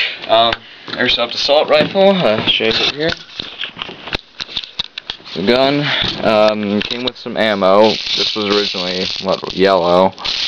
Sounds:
Speech

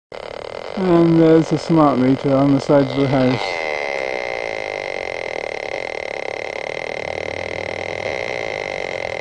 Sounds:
Speech, outside, urban or man-made

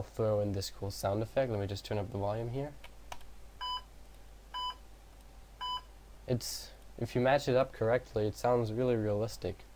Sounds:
Speech

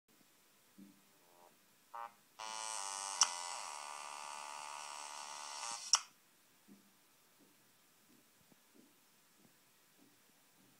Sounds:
Hum, Mains hum

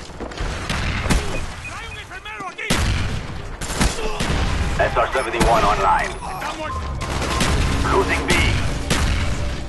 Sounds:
Speech

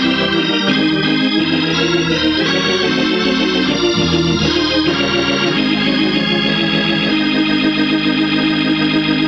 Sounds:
Hammond organ, Organ

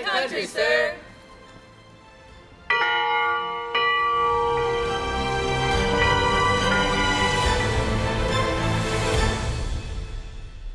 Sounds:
Church bell

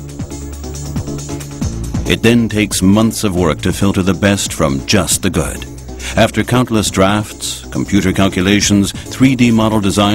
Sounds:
Music, Speech

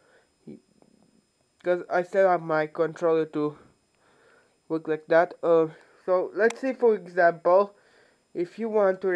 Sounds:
Speech

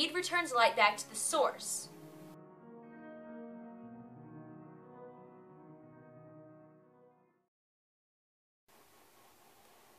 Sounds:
Speech, Music

